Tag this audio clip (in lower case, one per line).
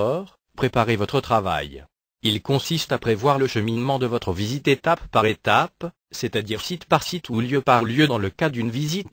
speech